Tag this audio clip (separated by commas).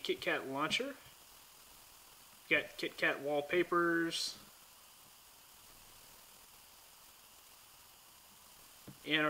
inside a small room, Speech